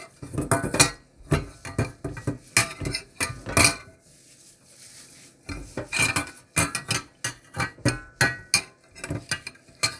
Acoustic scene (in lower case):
kitchen